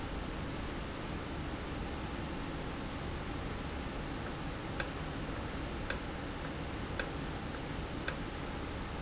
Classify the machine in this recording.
valve